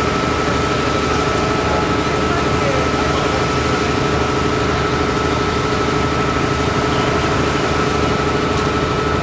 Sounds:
Speech

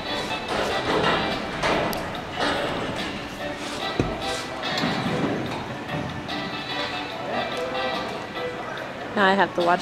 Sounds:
Music, Animal, Speech

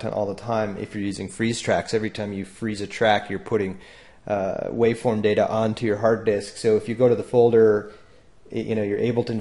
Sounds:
Speech

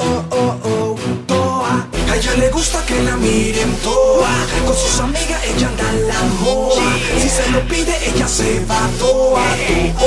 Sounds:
Music

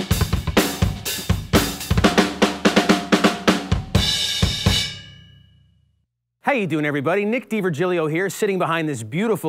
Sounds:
Drum, Rimshot, Drum kit, Percussion, Snare drum, Drum roll, Hi-hat, Cymbal, Bass drum

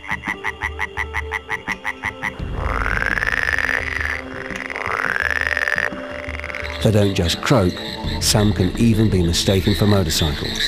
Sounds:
frog croaking

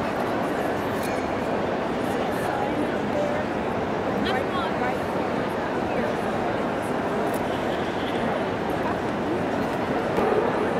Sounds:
Speech

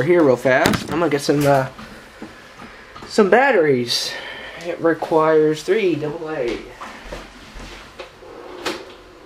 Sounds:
Speech

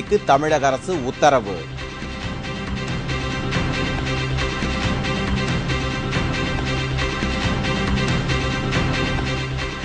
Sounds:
Television, Speech, Music

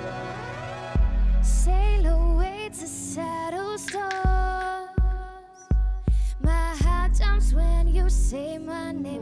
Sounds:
Music

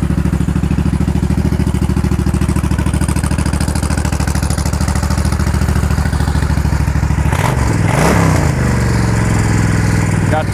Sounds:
Vehicle, Motorcycle

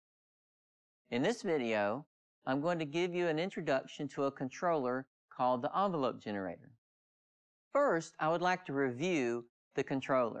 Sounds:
Speech

